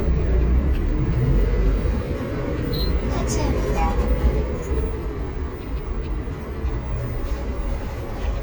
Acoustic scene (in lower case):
bus